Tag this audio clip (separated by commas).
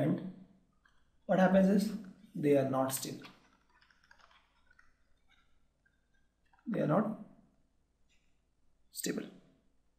Speech